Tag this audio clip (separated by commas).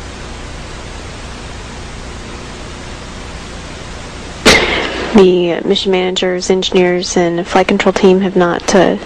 Speech